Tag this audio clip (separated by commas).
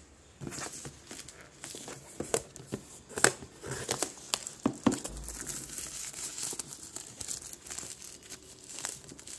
inside a small room, crinkling